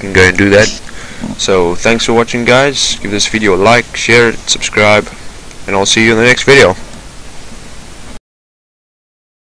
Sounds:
Speech, Pink noise

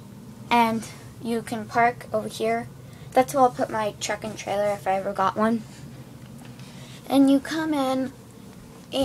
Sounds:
Speech

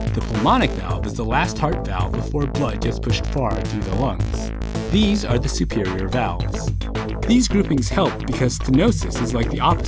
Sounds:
Music, Speech

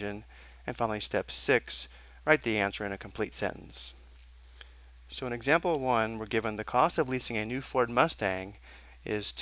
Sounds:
Speech

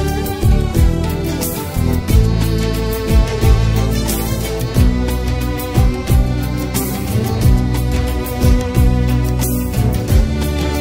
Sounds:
Music

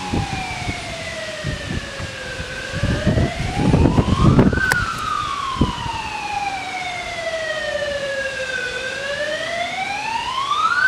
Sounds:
Police car (siren), Emergency vehicle, Siren

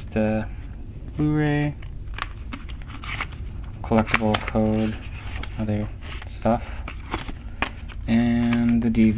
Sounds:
inside a small room, Speech

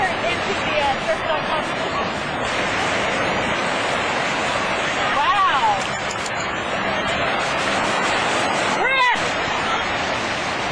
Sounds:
Music, Speech, surf

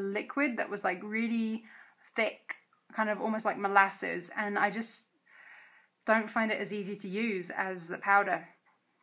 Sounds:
Speech

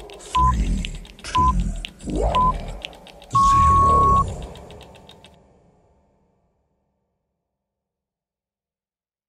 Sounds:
Speech, Sound effect

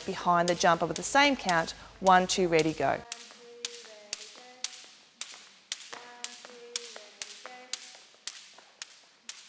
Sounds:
rope skipping

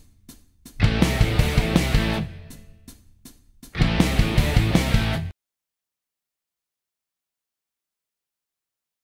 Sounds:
Plucked string instrument, Musical instrument, Music, Guitar, Acoustic guitar

